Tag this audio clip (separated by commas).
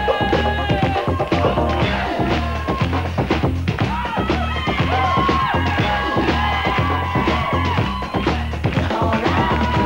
Music